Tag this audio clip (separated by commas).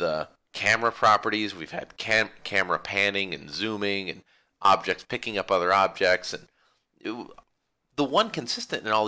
Speech